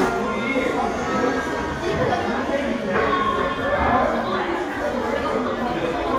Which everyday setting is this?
crowded indoor space